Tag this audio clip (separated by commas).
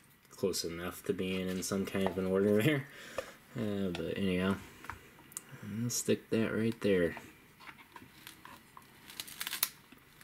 Speech